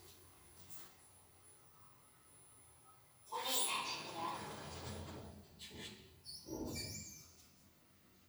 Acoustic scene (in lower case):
elevator